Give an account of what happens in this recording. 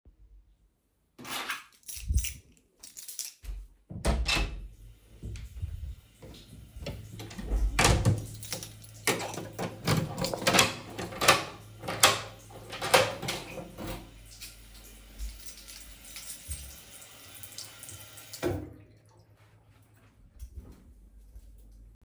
I took keys closed the door then went to the bathroom and turned the water off